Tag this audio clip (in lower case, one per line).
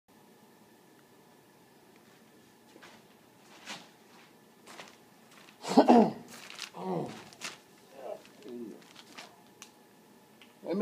speech